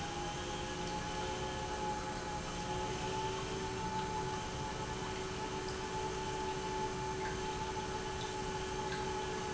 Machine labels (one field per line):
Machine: pump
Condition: normal